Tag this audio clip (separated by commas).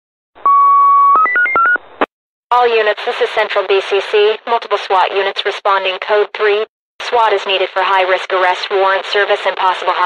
police radio chatter